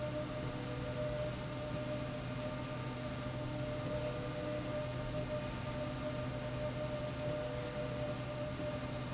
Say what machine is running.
slide rail